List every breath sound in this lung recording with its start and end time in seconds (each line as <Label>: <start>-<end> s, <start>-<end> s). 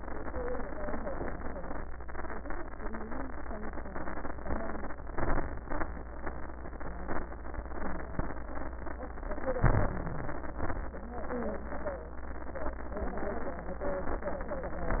Inhalation: 5.10-5.49 s, 9.66-9.93 s
Exhalation: 5.63-5.90 s, 10.64-10.91 s